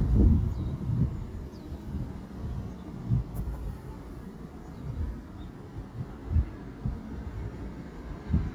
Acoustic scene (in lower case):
residential area